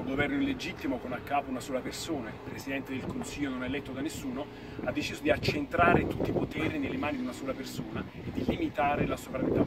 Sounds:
sailboat, speech

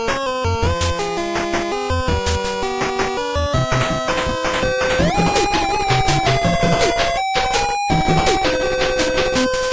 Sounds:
video game music, music

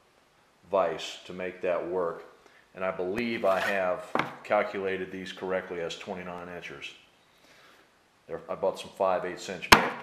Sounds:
speech

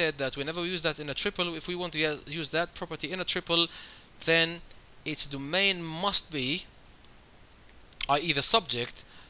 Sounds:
speech

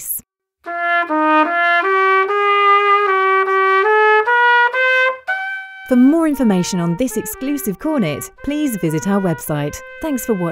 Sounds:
playing cornet

